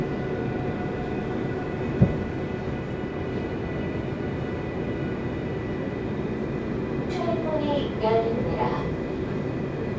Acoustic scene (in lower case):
subway train